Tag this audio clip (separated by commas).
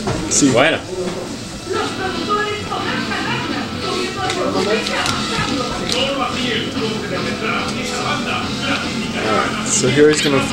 Speech, Music